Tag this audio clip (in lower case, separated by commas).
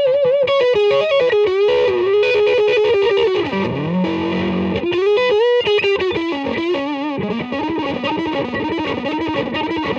strum, bass guitar, playing bass guitar, musical instrument, acoustic guitar, music, plucked string instrument, guitar